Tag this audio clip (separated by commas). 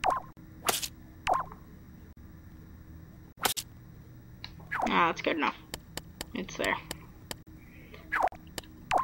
Speech